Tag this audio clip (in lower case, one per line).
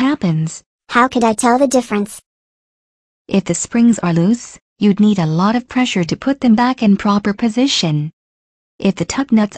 speech
inside a small room